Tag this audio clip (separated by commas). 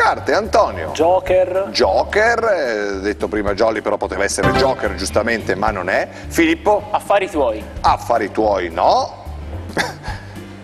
Music, Speech